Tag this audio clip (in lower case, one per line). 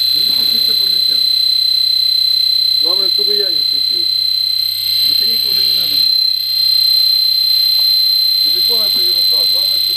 speech